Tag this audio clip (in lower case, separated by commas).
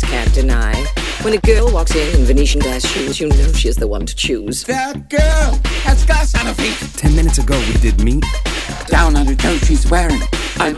music, speech